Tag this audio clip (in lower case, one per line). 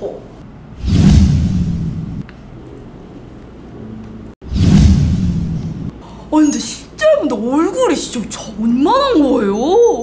speech